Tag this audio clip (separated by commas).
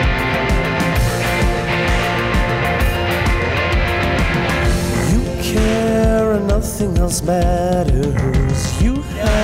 Music